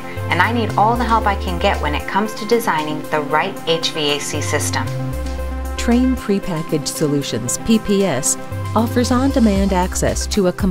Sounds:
speech, music

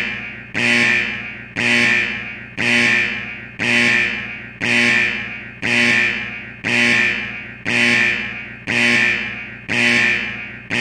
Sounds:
sound effect

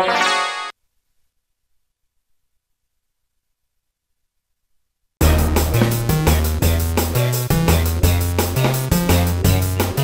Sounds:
playing synthesizer

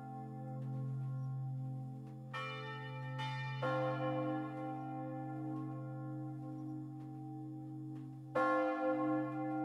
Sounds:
church bell

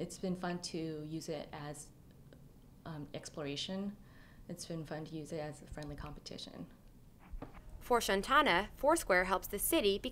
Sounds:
inside a small room, speech

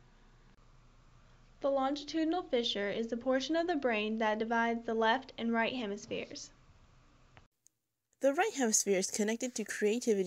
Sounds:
speech

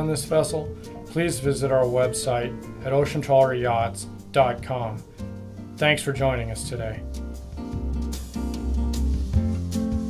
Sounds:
music, speech

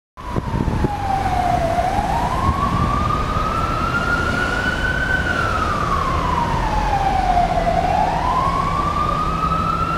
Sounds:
siren, car, emergency vehicle, motor vehicle (road), vehicle

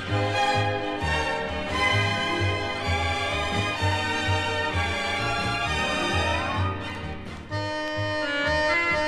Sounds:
music

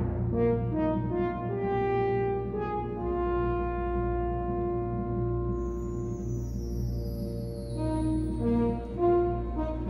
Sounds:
music

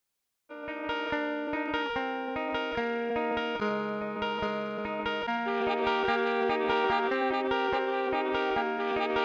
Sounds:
effects unit, music

